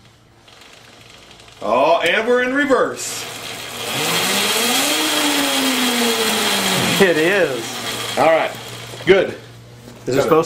A wheel spinning while a man talks followed by another man talking